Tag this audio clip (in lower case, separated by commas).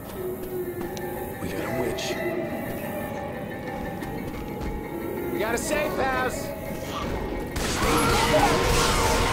speech, music